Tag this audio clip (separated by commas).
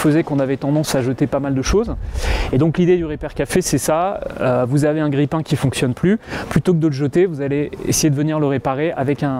Speech